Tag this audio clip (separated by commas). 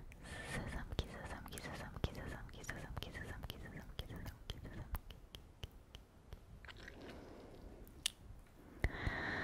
Whispering, people whispering